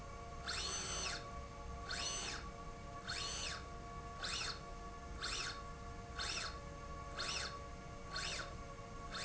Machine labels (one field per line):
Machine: slide rail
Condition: normal